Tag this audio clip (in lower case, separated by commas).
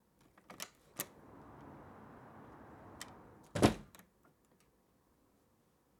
door, slam, home sounds